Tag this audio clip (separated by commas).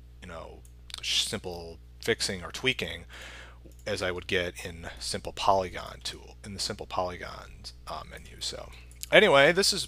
Speech